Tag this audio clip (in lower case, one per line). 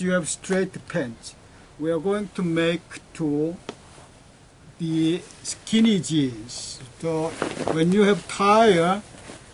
speech